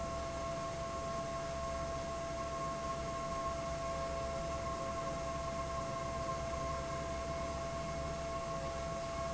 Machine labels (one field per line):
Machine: fan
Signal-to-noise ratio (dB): -6 dB